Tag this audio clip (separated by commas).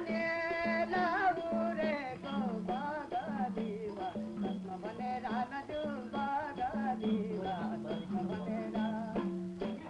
Music, outside, rural or natural